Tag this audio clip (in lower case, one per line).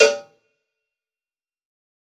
cowbell
bell